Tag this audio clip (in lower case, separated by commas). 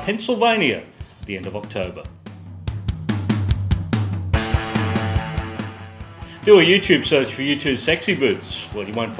background music, music, speech